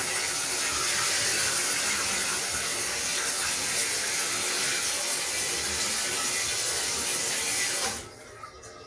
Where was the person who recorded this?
in a restroom